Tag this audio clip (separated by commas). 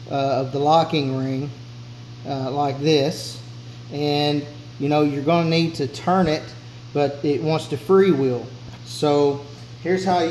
Speech